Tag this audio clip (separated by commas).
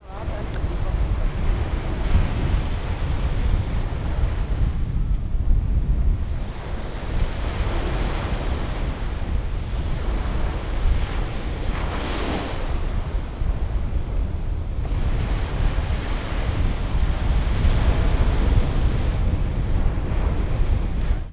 Ocean, Water